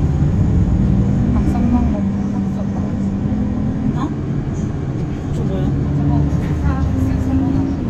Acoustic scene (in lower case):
bus